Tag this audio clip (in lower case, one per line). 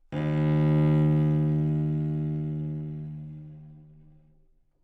musical instrument
bowed string instrument
music